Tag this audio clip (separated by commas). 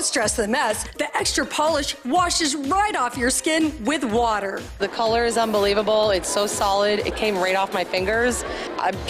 Speech, Music